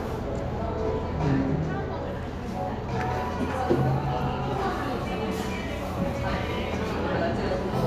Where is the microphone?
in a cafe